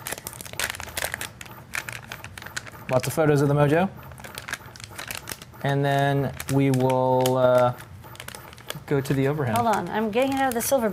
Some material is crumpled while a man and a woman talks